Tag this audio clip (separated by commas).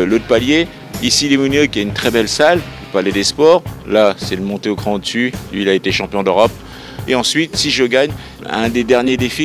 Speech, Music